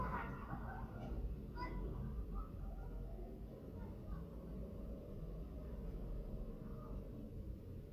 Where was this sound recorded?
in a residential area